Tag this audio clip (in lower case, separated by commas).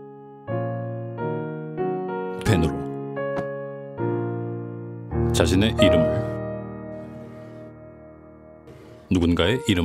speech, music